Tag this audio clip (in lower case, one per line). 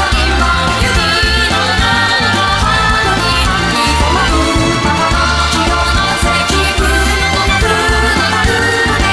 music